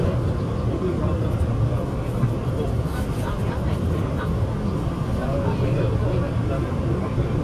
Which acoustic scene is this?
subway train